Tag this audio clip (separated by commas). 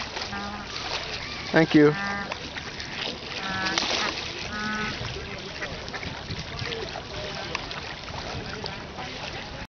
Honk, Fowl, Goose